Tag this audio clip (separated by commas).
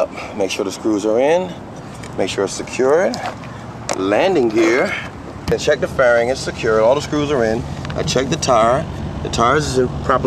Speech, Vehicle, Aircraft